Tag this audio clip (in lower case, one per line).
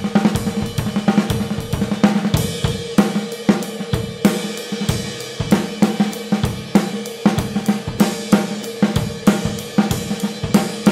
playing cymbal